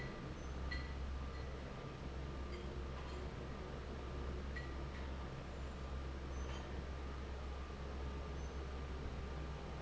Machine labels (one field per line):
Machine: fan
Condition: normal